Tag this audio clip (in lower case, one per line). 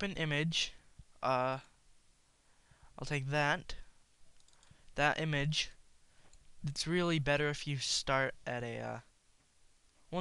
speech